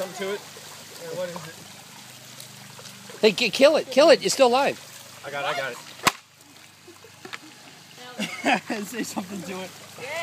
Water splashing sounds as boys talk followed by girl shrieks and a slap of a paper